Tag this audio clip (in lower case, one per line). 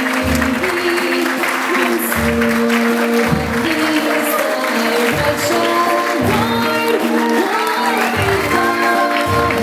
singing
song
choir
applause
music